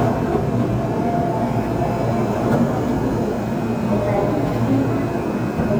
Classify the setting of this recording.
subway station